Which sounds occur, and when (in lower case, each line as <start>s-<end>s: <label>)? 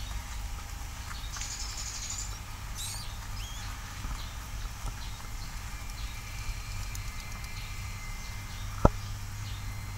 0.0s-9.9s: mechanisms
0.0s-0.1s: rodents
0.3s-0.3s: rodents
0.6s-0.7s: rodents
1.1s-1.3s: rodents
1.4s-2.4s: rodents
2.8s-3.1s: rodents
3.3s-3.7s: rodents
4.0s-4.3s: rodents
4.7s-4.7s: tick
4.8s-4.9s: tick
5.0s-5.2s: rodents
5.3s-5.5s: rodents
6.0s-6.1s: rodents
7.6s-7.7s: rodents
8.2s-8.3s: rodents
8.5s-8.7s: rodents
8.8s-8.9s: tick
9.0s-9.2s: rodents
9.4s-9.6s: rodents